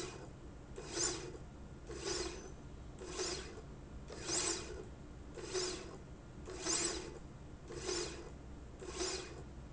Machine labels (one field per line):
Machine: slide rail